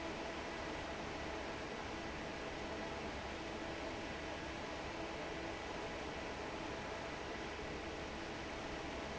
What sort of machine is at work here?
fan